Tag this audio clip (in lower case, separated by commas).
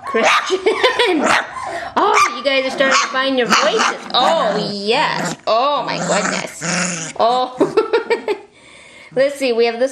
dog, canids, speech, domestic animals, animal